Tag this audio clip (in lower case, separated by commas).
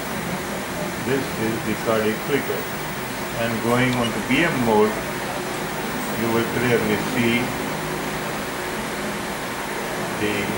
speech, air conditioning